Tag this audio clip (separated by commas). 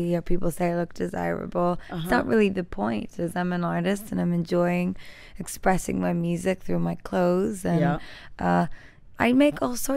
Speech